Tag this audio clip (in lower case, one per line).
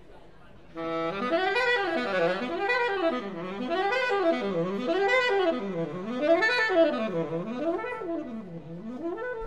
music
jazz